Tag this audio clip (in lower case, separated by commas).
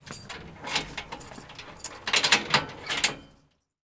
domestic sounds, keys jangling